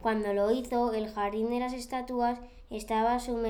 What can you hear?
speech